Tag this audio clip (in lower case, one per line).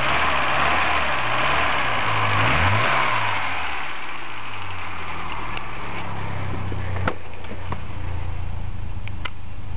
vehicle
medium engine (mid frequency)
vroom
engine